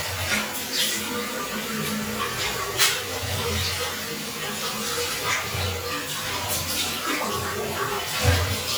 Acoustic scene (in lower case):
restroom